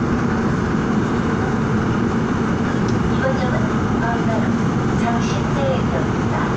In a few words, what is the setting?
subway train